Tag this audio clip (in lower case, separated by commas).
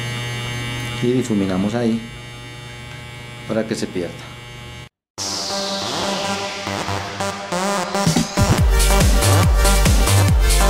cutting hair with electric trimmers